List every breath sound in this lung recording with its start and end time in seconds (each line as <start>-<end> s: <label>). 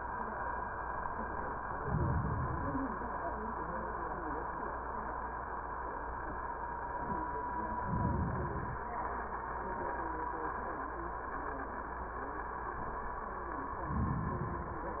1.75-2.85 s: inhalation
7.79-8.89 s: inhalation
13.84-14.94 s: inhalation